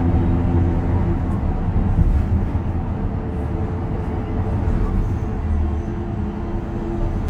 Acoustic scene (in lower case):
bus